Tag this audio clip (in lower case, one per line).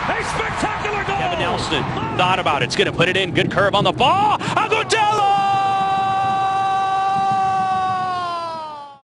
speech